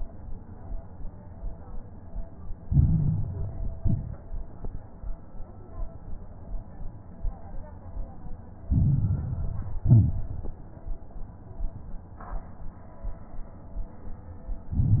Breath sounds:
Inhalation: 2.66-3.72 s, 8.70-9.80 s, 14.73-15.00 s
Exhalation: 3.78-4.24 s, 9.86-10.55 s
Crackles: 2.66-3.72 s, 3.78-4.24 s, 8.70-9.80 s, 9.86-10.55 s, 14.73-15.00 s

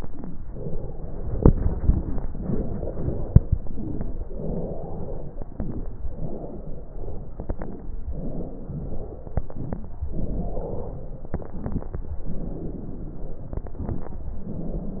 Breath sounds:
Inhalation: 0.49-1.39 s, 2.28-3.38 s, 4.25-5.35 s, 6.13-7.30 s, 8.15-9.34 s, 10.10-11.29 s, 12.18-13.50 s, 14.16-15.00 s
Exhalation: 0.00-0.38 s, 1.46-2.23 s, 3.47-4.26 s, 5.36-6.04 s, 7.33-8.01 s, 9.37-9.93 s, 11.43-11.99 s, 13.58-14.14 s
Crackles: 0.00-0.38 s, 0.49-1.39 s, 1.46-2.23 s, 2.24-3.37 s, 3.43-4.25 s, 4.26-5.34 s, 5.39-6.00 s, 6.12-7.31 s, 7.33-7.98 s, 8.11-9.35 s, 9.37-9.90 s, 10.10-11.26 s, 12.15-13.49 s, 13.56-14.09 s, 14.14-15.00 s

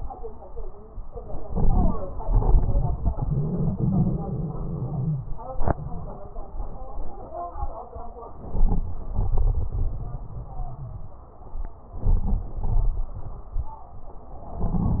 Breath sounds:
Inhalation: 1.37-2.12 s, 8.39-8.98 s, 12.03-12.57 s, 14.57-15.00 s
Exhalation: 2.19-5.19 s, 9.04-11.86 s, 12.63-13.79 s
Crackles: 1.35-2.11 s, 2.16-5.15 s, 8.39-8.98 s, 9.04-11.84 s, 12.03-12.57 s, 12.63-13.79 s, 14.57-15.00 s

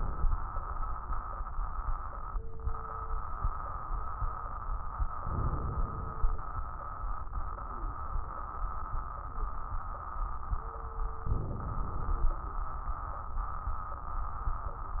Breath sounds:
Inhalation: 5.17-6.31 s, 11.28-12.41 s
Crackles: 5.17-6.31 s, 11.28-12.41 s

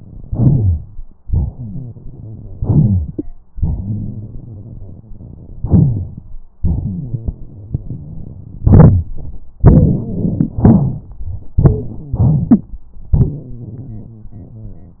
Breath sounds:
Inhalation: 0.23-1.10 s, 2.56-3.29 s, 5.61-6.25 s, 8.63-9.11 s, 10.62-11.10 s, 12.14-12.79 s
Exhalation: 1.24-2.53 s, 9.63-10.53 s, 11.61-12.14 s
Wheeze: 9.60-9.92 s
Stridor: 11.63-11.82 s
Rhonchi: 0.29-0.80 s, 2.58-3.08 s, 3.53-5.64 s, 5.70-6.05 s, 6.61-7.29 s, 7.55-8.27 s, 8.62-9.04 s, 10.61-11.01 s, 11.96-12.23 s

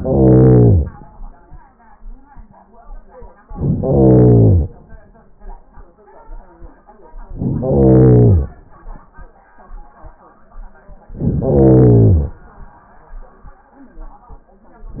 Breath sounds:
Inhalation: 0.00-1.18 s, 3.47-4.76 s, 7.26-8.54 s, 11.15-12.44 s

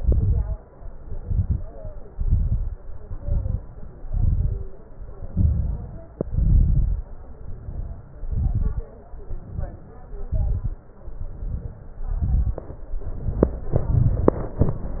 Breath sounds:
Inhalation: 0.99-1.69 s, 3.02-3.72 s, 5.28-6.08 s, 7.35-8.15 s, 9.23-9.99 s, 11.12-11.87 s, 13.04-13.79 s
Exhalation: 0.00-0.57 s, 2.15-2.71 s, 4.08-4.67 s, 6.27-7.07 s, 8.23-8.89 s, 10.26-10.87 s, 12.07-12.62 s, 13.80-14.55 s
Crackles: 0.00-0.57 s, 0.99-1.69 s, 2.15-2.71 s, 3.02-3.72 s, 4.08-4.67 s, 5.28-6.08 s, 6.27-7.07 s, 8.23-8.89 s, 10.26-10.87 s, 12.07-12.62 s, 13.80-14.55 s

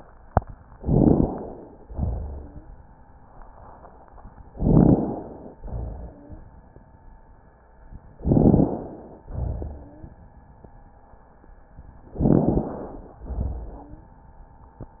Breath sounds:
Inhalation: 0.76-1.80 s, 4.52-5.56 s, 8.20-9.24 s, 12.20-13.24 s
Exhalation: 1.86-2.73 s, 5.58-6.45 s, 9.30-10.17 s, 13.28-14.19 s
Wheeze: 2.18-2.71 s, 5.96-6.49 s, 9.62-10.17 s, 13.64-14.19 s
Rhonchi: 0.78-1.42 s, 4.55-5.20 s, 8.24-8.79 s, 12.20-12.75 s

